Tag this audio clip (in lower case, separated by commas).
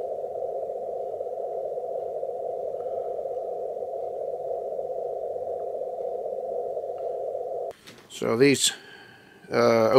speech